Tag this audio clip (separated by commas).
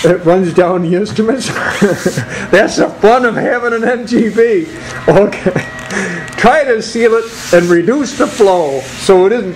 Speech